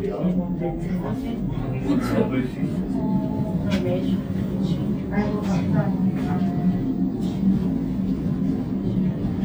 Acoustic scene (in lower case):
elevator